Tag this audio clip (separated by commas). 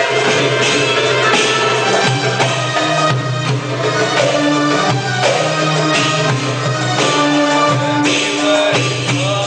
Music